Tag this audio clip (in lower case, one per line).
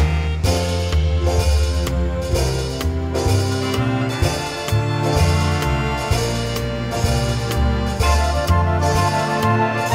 music